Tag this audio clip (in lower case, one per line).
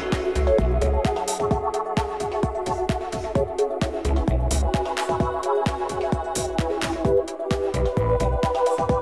music